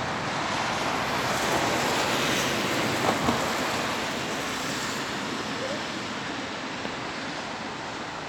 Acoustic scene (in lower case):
street